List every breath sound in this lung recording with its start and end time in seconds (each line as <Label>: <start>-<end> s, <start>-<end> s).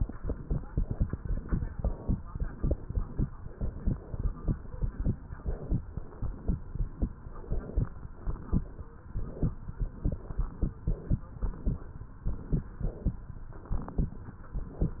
Inhalation: 0.00-0.73 s, 1.71-2.14 s, 3.46-4.47 s, 5.22-5.83 s, 7.21-8.11 s, 9.11-9.89 s, 10.81-11.31 s, 12.25-13.18 s, 14.28-15.00 s
Exhalation: 0.73-1.68 s, 2.27-3.24 s, 4.47-5.12 s, 5.87-6.55 s, 8.15-8.93 s, 9.93-10.71 s, 11.31-12.12 s, 13.28-14.20 s